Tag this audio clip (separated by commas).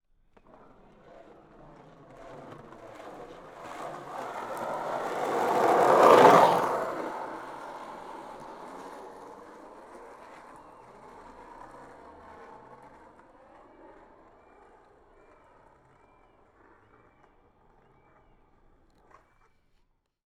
Skateboard, Vehicle